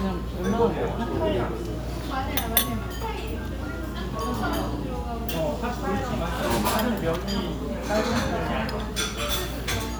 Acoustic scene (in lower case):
restaurant